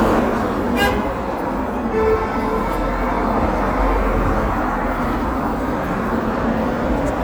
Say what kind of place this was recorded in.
cafe